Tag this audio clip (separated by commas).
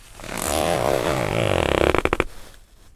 home sounds, Zipper (clothing)